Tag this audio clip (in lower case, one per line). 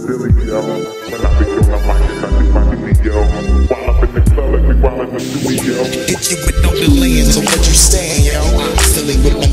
hip hop music
music